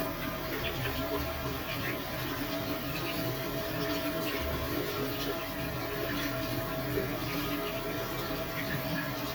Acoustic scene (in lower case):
restroom